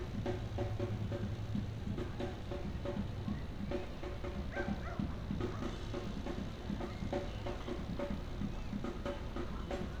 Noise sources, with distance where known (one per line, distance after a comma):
music from a fixed source, far